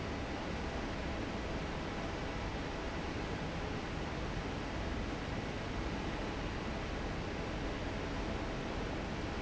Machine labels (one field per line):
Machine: fan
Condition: normal